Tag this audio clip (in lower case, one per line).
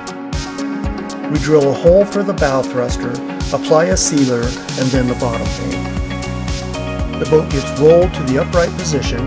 music
speech